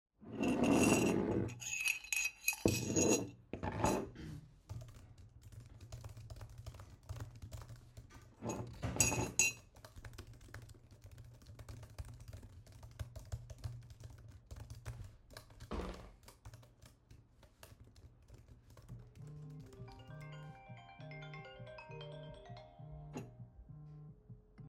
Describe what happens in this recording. I stirred the tea in the mug with a spoon, and drank from it. I then put it on the table and started typing. I then received a phone call